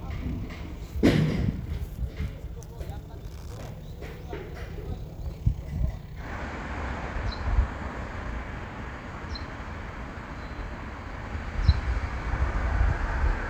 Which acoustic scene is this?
residential area